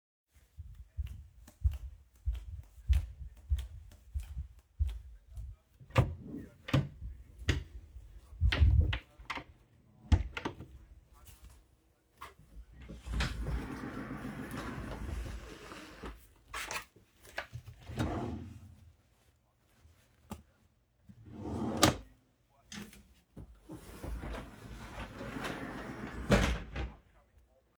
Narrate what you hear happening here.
I walked down the hallway to my bedroom and opened the door. I turned on the light and opened my wardrobe and then a drawer in my wardrobe. Than i close the drawer and the wardrobe.